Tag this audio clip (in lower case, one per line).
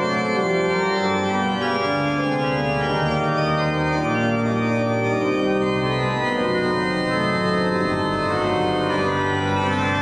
organ
hammond organ
playing hammond organ